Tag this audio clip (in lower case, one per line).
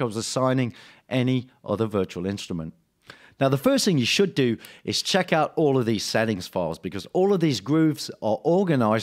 speech